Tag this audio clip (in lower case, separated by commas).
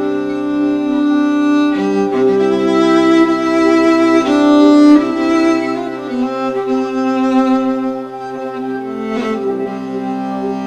musical instrument, bowed string instrument, music, violin, classical music